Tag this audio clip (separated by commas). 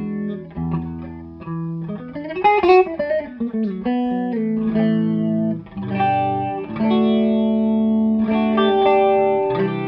Guitar, Electric guitar, Musical instrument, Plucked string instrument, Music, Chorus effect, Effects unit, Distortion